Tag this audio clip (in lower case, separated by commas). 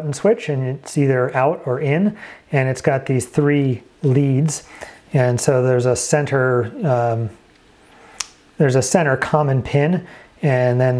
speech